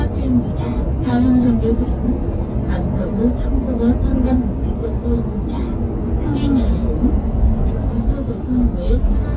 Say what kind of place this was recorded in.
bus